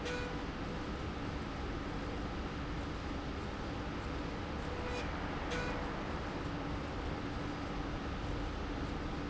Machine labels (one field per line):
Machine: slide rail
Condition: normal